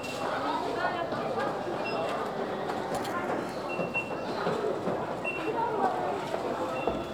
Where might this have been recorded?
in a crowded indoor space